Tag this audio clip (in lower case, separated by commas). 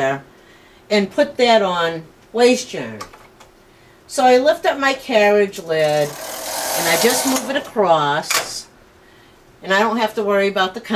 speech, inside a large room or hall